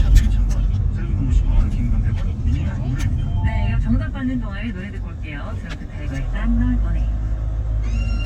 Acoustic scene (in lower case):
car